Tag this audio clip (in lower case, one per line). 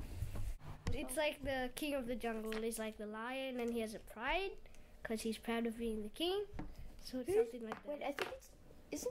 speech